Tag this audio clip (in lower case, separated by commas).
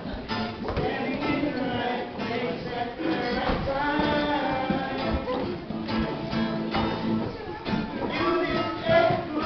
music, male singing